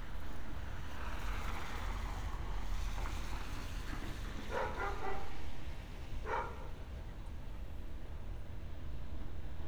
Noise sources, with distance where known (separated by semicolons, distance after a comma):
dog barking or whining